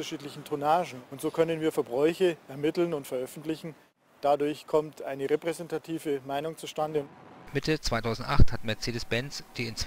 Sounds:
Speech

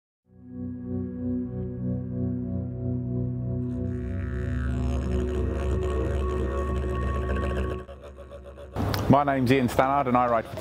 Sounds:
Speech, Music

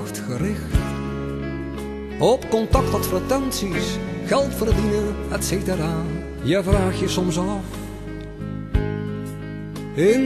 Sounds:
Music, Speech

